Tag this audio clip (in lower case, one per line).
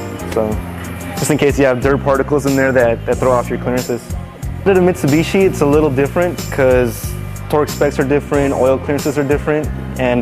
speech
music